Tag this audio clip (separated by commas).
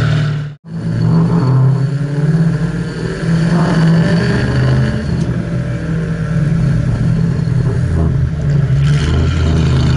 Vehicle, revving, Car